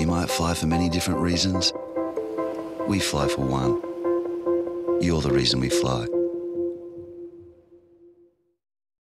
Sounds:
Speech, Music

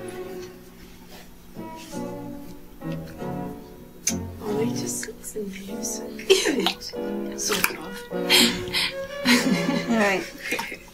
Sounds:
Speech, Music

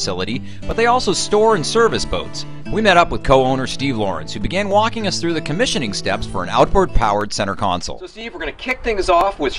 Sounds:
Music, Speech

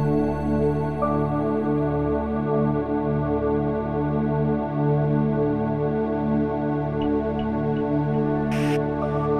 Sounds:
typing on typewriter

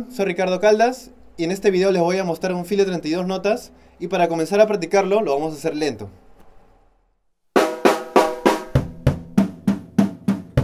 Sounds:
Music, Speech

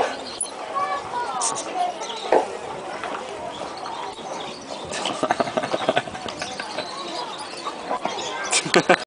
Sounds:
bird call, Bird, tweet

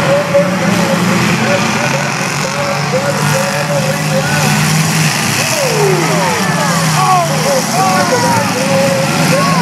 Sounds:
Vehicle, Speech

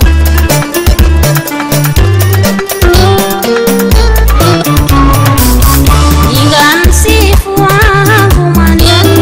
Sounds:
Funk, Music

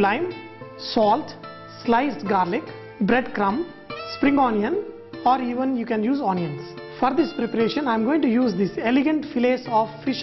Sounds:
Music, Speech

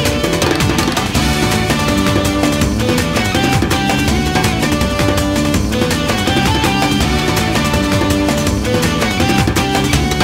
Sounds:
Music

